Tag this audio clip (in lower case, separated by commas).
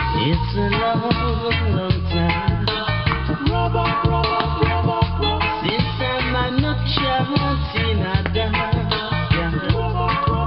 music